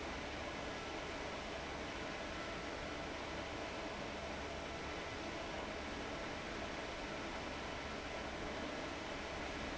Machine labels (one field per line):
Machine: fan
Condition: abnormal